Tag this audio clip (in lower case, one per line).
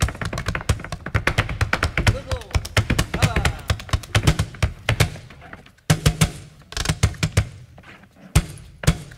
thunk
speech